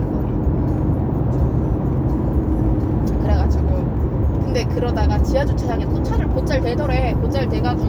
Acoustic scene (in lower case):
car